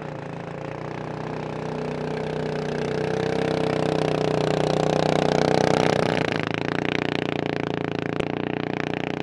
Small engine running